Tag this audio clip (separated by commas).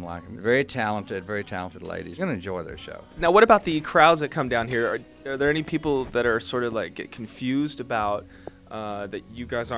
Music, Speech